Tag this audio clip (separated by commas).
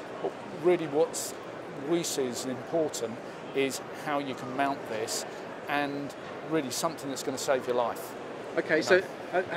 Speech